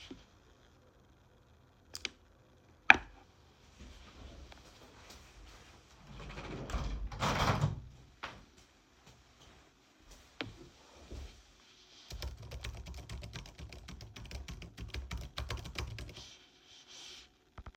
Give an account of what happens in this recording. I turned the table lamp on. Then closed the window and then started typing on keybord/doing another assignment